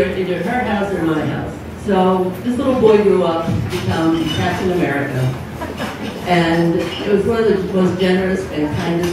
Woman giving a speech dishes clanking in the background